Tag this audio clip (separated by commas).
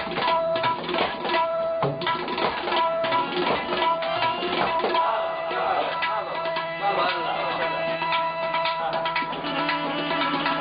Music, Tabla, Speech